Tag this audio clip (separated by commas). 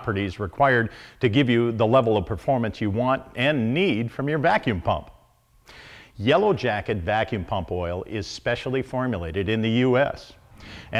Speech